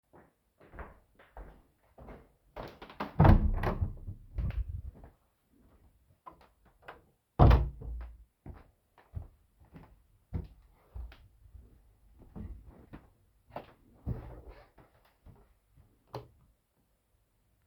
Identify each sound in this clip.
footsteps, door, light switch